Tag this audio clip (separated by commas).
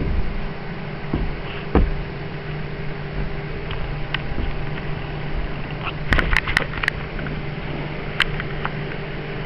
Vehicle